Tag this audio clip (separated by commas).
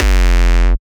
Musical instrument, Keyboard (musical), Drum, Percussion, Bass drum, Music